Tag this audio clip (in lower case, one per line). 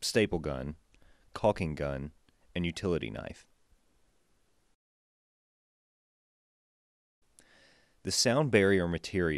speech